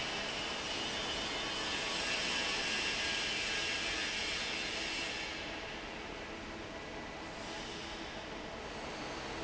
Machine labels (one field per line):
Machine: fan